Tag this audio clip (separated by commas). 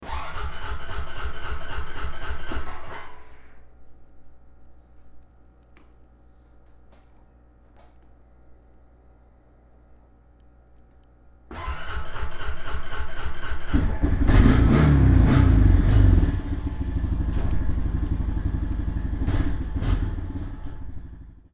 Engine, Engine starting